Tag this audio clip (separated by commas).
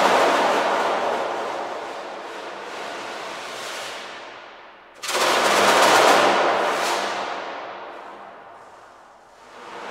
inside a large room or hall, Music